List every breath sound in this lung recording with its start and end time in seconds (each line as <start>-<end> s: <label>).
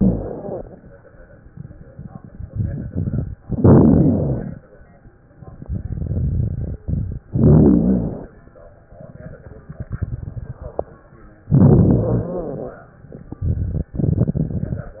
0.00-0.70 s: inhalation
0.00-0.70 s: rhonchi
1.50-3.35 s: crackles
3.49-4.65 s: inhalation
3.49-4.65 s: crackles
5.52-7.20 s: crackles
7.36-8.39 s: inhalation
7.36-8.39 s: crackles
9.47-11.03 s: crackles
11.48-12.92 s: inhalation
11.48-12.92 s: crackles
13.45-15.00 s: crackles